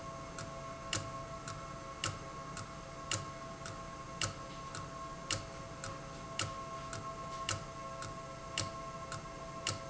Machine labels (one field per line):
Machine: valve